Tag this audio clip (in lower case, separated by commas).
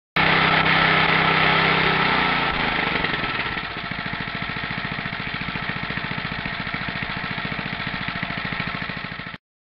sound effect